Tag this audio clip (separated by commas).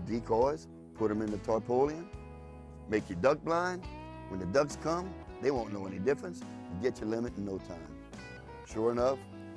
Music, Speech